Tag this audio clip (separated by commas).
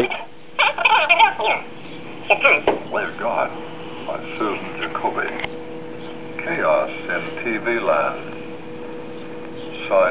Speech, inside a small room